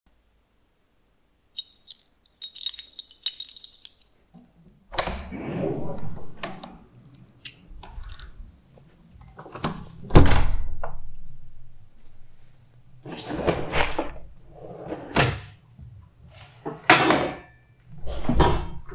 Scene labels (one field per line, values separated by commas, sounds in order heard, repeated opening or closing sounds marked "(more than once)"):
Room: hallway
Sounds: keys, door (more than once), wardrobe or drawer (more than once)